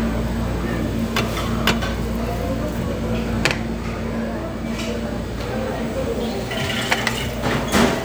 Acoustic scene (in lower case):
restaurant